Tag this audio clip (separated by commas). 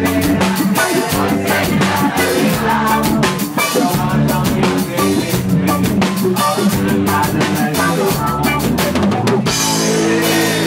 Music